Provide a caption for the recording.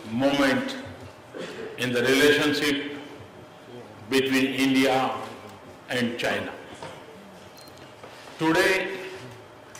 Man giving a speech with muffled murmuring